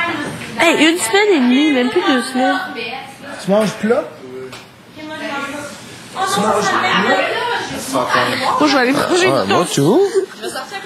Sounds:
speech

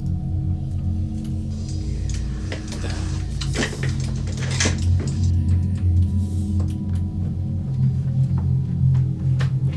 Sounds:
speech, music

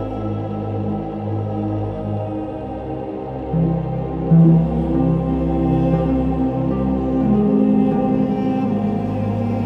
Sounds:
music, tender music

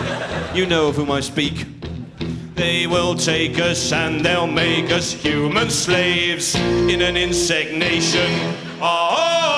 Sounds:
speech, music

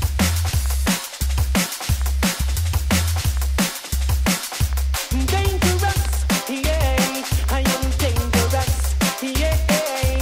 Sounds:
music, electronic music, drum and bass

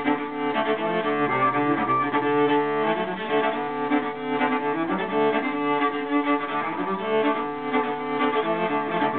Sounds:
musical instrument, cello, music

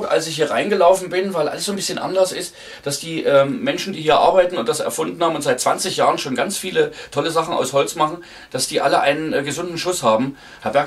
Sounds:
speech

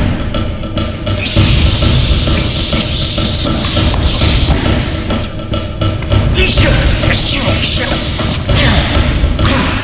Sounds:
music

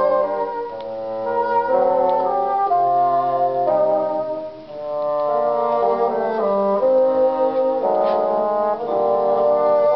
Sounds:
playing bassoon

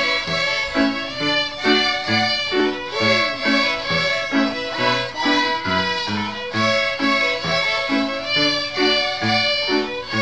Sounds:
musical instrument, music, fiddle

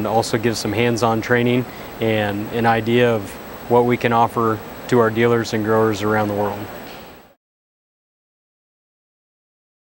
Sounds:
speech

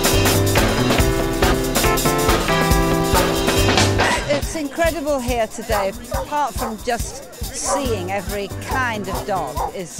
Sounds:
bow-wow, music, animal, dog, speech, domestic animals

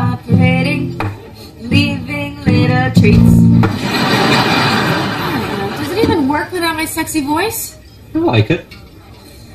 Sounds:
inside a large room or hall, singing, speech, music

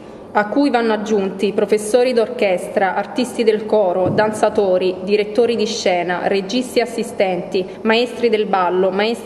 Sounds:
speech

